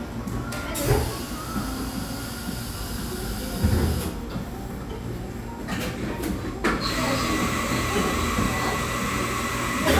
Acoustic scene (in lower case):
cafe